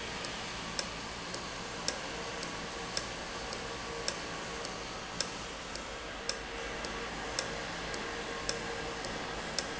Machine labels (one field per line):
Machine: valve